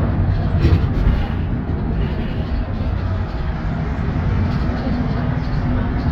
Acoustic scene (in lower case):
bus